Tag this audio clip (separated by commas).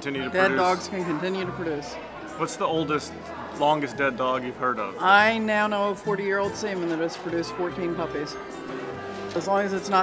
Music, Speech